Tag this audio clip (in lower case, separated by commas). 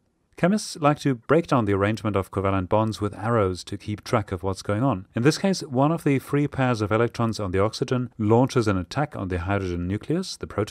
speech